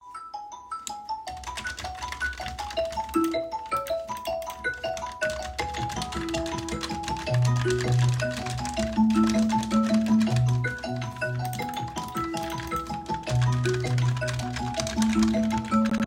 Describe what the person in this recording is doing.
I was typing on my keyboard when my phone started ringing. Both sounds overlapped for several seconds.